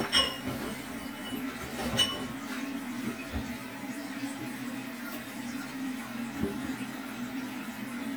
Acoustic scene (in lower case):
kitchen